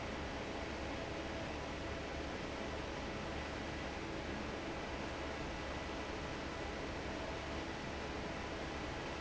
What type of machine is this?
fan